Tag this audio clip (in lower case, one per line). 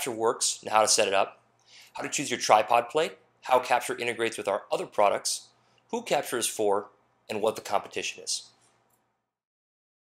speech